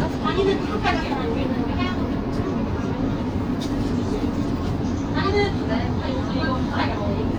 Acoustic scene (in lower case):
bus